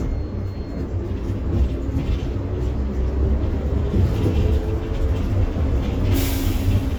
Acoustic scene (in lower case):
bus